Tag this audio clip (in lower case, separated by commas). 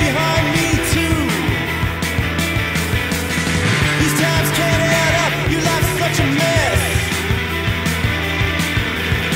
music, spray